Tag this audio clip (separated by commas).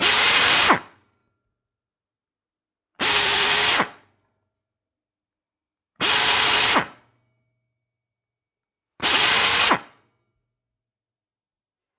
Tools, Drill, Power tool